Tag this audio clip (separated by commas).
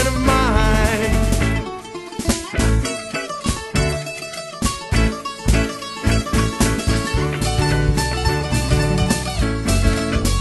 Roll, Music, Rock and roll